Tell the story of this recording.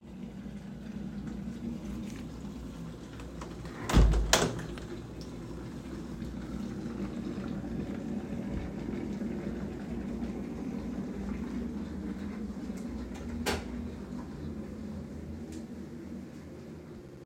While the electric kettle was heating the water, I closed the window and turned on the light.